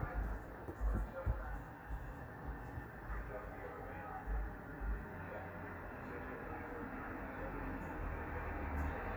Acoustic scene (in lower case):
street